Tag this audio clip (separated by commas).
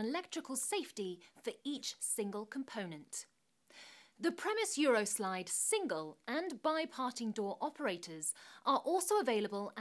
Speech